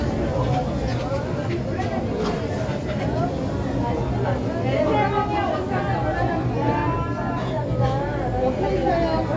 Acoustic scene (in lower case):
crowded indoor space